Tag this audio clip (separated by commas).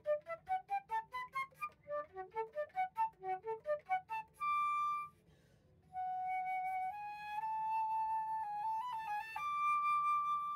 playing flute